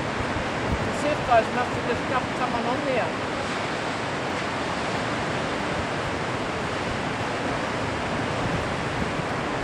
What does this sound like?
Heavy wave sound with wind blowing and a man talking